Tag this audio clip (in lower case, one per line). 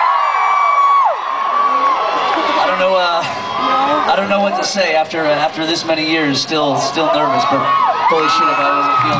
whoop
speech
inside a large room or hall